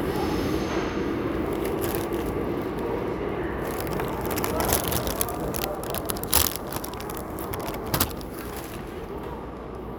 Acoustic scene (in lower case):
subway station